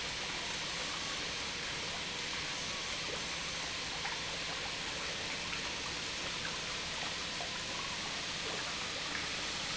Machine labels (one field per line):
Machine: pump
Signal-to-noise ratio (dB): -6 dB